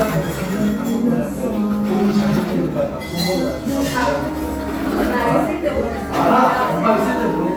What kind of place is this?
cafe